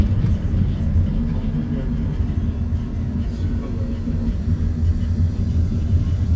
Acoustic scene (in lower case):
bus